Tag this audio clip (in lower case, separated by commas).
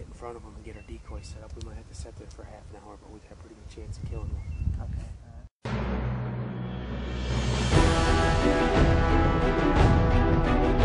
music, bird, speech